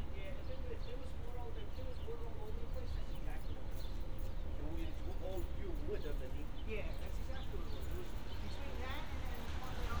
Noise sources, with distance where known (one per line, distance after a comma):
person or small group talking, near